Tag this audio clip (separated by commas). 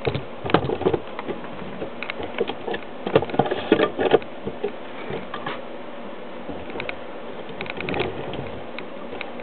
Vehicle